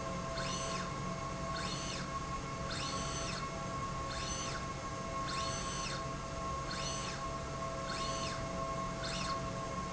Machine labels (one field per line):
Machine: slide rail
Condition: normal